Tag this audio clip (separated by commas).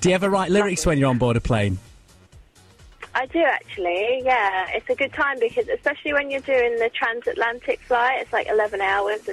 Speech, Music